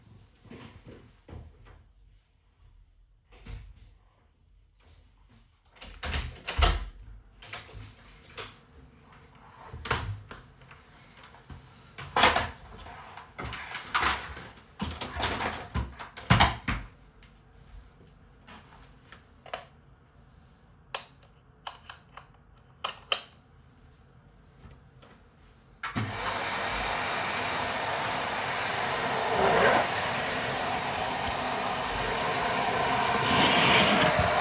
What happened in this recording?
I came to my room with a vaccum cleaner. Opened the door with a key, turned the lights on and started cleaning.